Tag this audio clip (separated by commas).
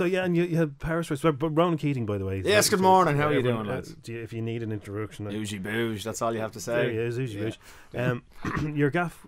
Speech